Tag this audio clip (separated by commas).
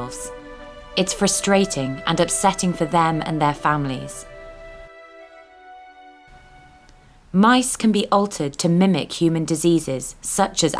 Speech, Music